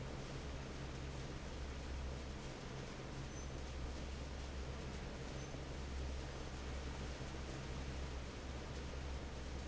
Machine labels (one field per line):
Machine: fan